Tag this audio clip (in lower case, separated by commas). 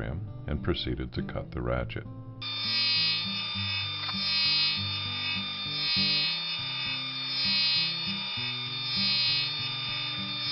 music, speech